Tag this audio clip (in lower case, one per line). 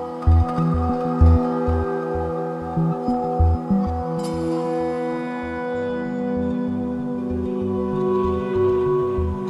ambient music